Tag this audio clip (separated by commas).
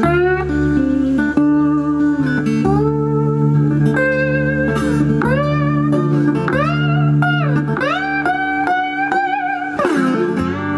Music, Musical instrument, Plucked string instrument, Steel guitar, Guitar